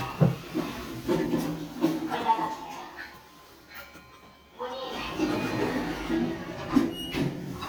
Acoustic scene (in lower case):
elevator